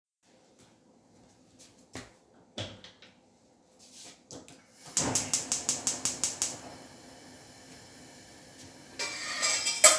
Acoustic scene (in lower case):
kitchen